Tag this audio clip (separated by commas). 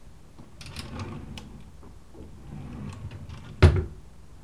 Drawer open or close, Domestic sounds